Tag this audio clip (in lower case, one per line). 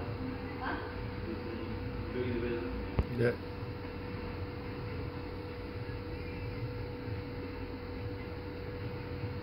speech
outside, urban or man-made